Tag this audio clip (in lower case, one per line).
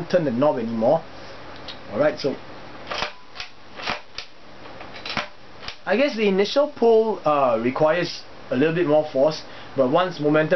speech
inside a small room